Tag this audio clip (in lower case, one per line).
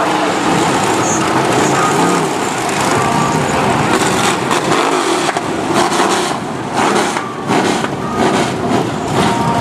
vehicle